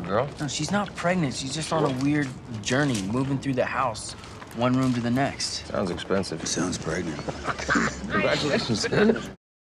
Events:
0.0s-2.2s: man speaking
0.0s-8.9s: conversation
0.0s-9.3s: mechanisms
2.5s-4.1s: man speaking
4.1s-4.4s: breathing
4.5s-7.2s: man speaking
7.0s-7.6s: laughter
8.0s-8.5s: woman speaking
8.1s-8.9s: man speaking
8.8s-9.3s: laughter

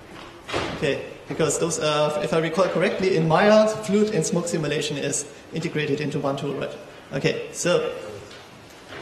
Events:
0.0s-0.3s: breathing
0.0s-9.0s: background noise
0.4s-0.8s: generic impact sounds
0.8s-5.3s: man speaking
5.3s-5.5s: breathing
5.5s-6.9s: man speaking
7.1s-8.3s: man speaking
8.3s-8.5s: breathing

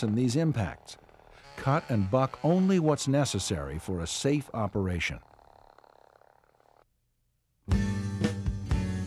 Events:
0.0s-0.8s: man speaking
0.0s-6.8s: mechanisms
1.6s-5.3s: man speaking
7.6s-9.0s: music

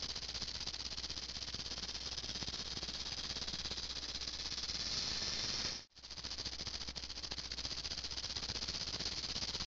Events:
0.0s-9.6s: sound effect

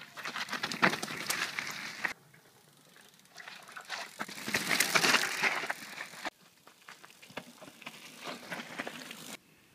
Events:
0.0s-2.1s: bicycle
0.0s-9.7s: wind
2.3s-6.3s: bicycle
6.4s-9.4s: bicycle

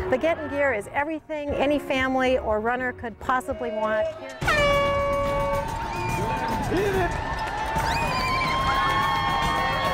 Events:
0.0s-0.9s: crowd
0.0s-4.2s: female speech
0.0s-9.9s: music
3.5s-4.5s: man speaking
4.4s-9.9s: crowd
4.4s-5.6s: truck horn
5.2s-9.9s: cheering
5.7s-6.2s: children shouting
6.2s-7.1s: man speaking
6.5s-9.9s: run
7.4s-7.5s: clapping
7.7s-9.9s: children shouting
8.6s-8.7s: clapping
8.8s-8.9s: clapping
9.1s-9.2s: clapping

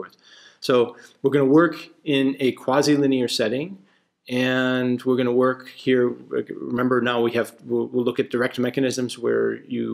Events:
0.0s-0.6s: breathing
0.0s-9.9s: background noise
0.6s-1.0s: male speech
0.9s-1.2s: breathing
1.2s-3.7s: male speech
3.8s-4.1s: breathing
4.2s-6.1s: male speech
6.3s-9.9s: male speech

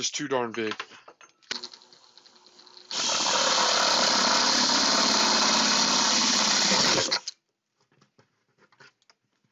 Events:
0.0s-0.7s: male speech
0.0s-9.5s: background noise
0.5s-0.8s: generic impact sounds
0.9s-1.3s: generic impact sounds
1.4s-1.7s: generic impact sounds
1.5s-7.0s: drill
7.1s-7.3s: generic impact sounds
7.4s-7.5s: generic impact sounds
7.7s-8.2s: generic impact sounds
8.5s-8.9s: generic impact sounds
9.0s-9.1s: generic impact sounds
9.3s-9.5s: generic impact sounds

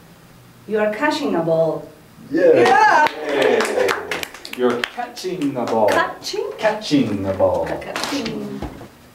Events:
0.0s-9.1s: mechanisms
0.6s-8.6s: conversation
5.8s-6.0s: clapping
6.5s-7.9s: male speech
7.6s-8.6s: female speech
7.9s-8.2s: generic impact sounds
8.2s-8.3s: clicking

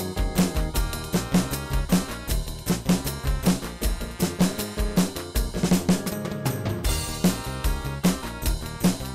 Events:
0.0s-9.1s: music

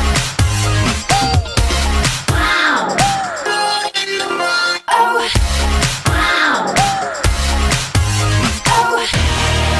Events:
0.0s-9.7s: music
1.1s-1.5s: human voice
2.2s-3.5s: human voice
3.4s-5.3s: synthetic singing
6.0s-7.2s: human voice
8.6s-9.1s: human voice

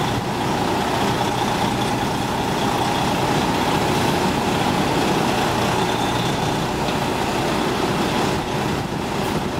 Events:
0.0s-9.5s: background noise
0.0s-9.5s: truck
0.0s-9.5s: wind noise (microphone)

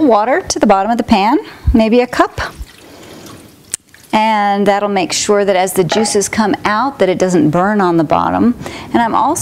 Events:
0.0s-9.4s: background noise
2.1s-4.3s: pour
5.8s-6.1s: glass
7.5s-9.4s: wind noise (microphone)
8.6s-8.9s: breathing

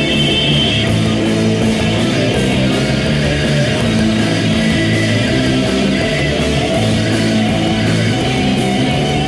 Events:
0.0s-9.2s: music
4.5s-6.8s: singing

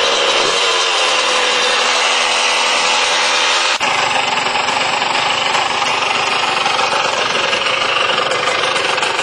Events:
0.0s-9.2s: motorcycle

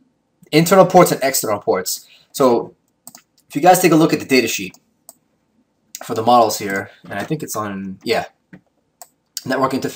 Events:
0.0s-9.9s: background noise
0.4s-1.9s: man speaking
0.4s-9.9s: conversation
2.3s-2.7s: man speaking
2.9s-3.2s: computer keyboard
3.5s-4.8s: man speaking
4.7s-4.8s: computer keyboard
5.0s-5.2s: computer keyboard
5.9s-6.9s: man speaking
7.0s-8.3s: man speaking
8.5s-8.8s: computer keyboard
9.0s-9.2s: computer keyboard
9.4s-9.9s: man speaking

